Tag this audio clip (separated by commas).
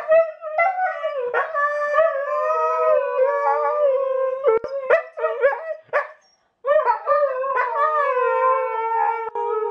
dog howling